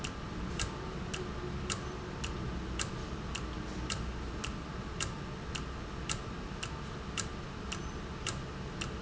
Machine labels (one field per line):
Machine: valve